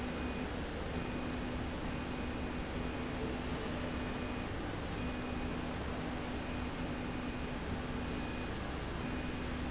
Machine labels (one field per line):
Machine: slide rail